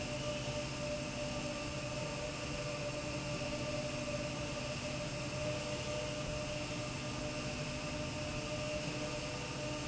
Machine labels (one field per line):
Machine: slide rail